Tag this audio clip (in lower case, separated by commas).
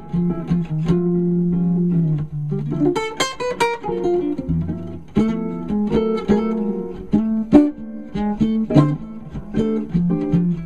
music